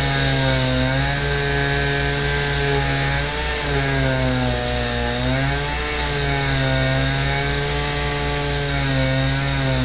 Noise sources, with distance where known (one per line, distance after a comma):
unidentified powered saw, near